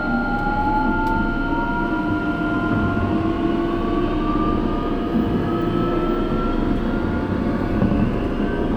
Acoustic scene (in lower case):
subway train